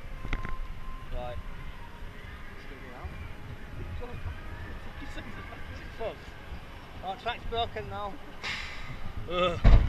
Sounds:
speech

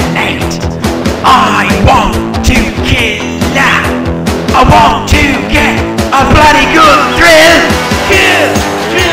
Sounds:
middle eastern music, music

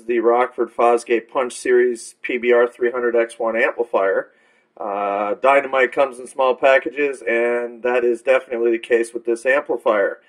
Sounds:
speech

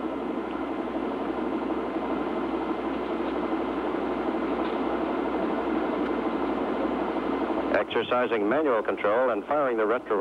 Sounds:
speech

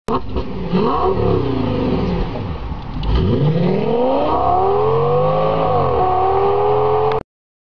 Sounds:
vehicle, car, accelerating

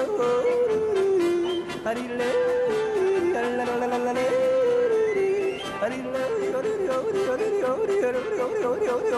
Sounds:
yodelling

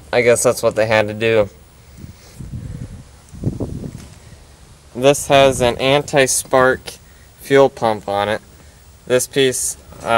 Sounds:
speech

